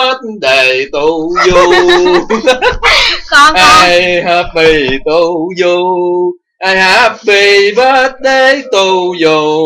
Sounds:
Male singing, Speech

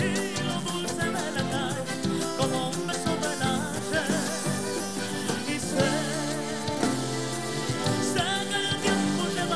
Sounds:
Music

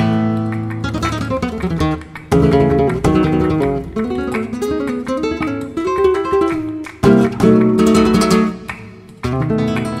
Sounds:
Strum, Musical instrument, Music, Flamenco, Guitar, Plucked string instrument

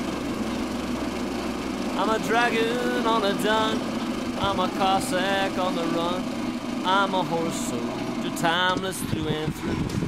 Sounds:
Vibration, Lawn mower

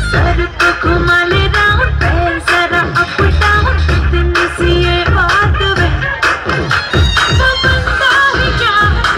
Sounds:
Music, Singing

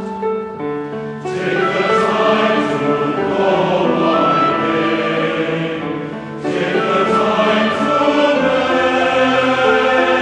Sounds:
Music

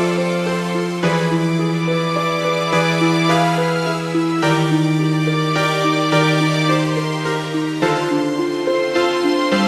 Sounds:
Music, Soundtrack music

